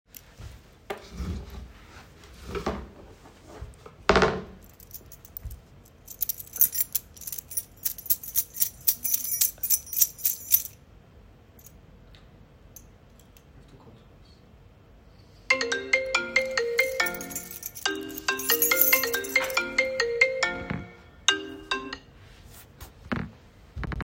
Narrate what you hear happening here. I adjusted my chair and sat down. While I was playing with my keys, I received a phone call.